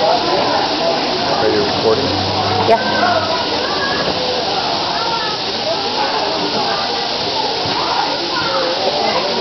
Crowd in the background noise while man and woman speak